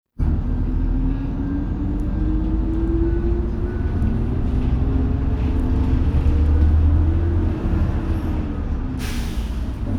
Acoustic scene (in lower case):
bus